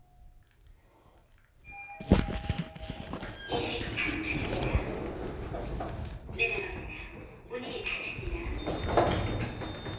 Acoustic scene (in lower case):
elevator